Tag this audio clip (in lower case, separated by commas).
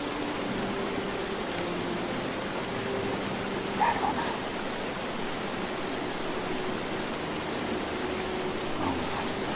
outside, rural or natural, speech